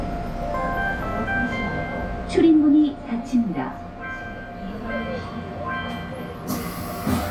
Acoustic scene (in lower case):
subway train